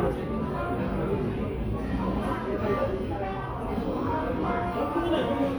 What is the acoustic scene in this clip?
crowded indoor space